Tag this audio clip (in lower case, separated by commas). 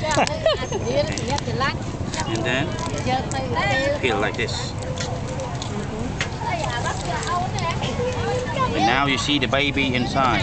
speech